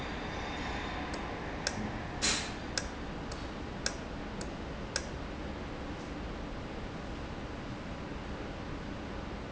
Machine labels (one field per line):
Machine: valve